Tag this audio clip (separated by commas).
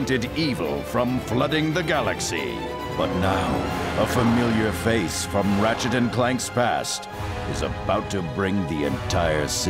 Music, Speech